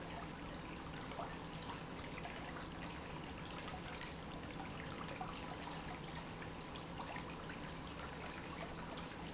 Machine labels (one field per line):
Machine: pump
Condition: normal